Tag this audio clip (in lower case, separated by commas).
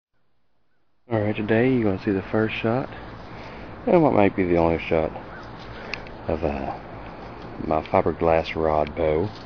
speech